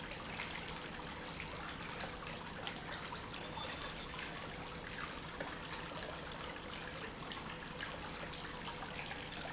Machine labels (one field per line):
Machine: pump